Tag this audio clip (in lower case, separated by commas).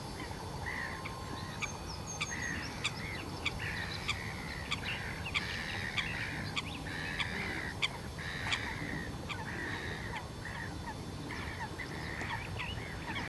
bird, bird call, animal, wild animals